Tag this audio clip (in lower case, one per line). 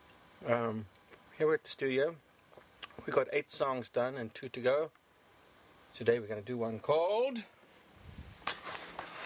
inside a small room
speech